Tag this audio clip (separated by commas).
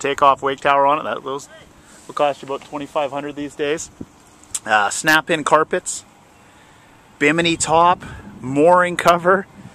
Speech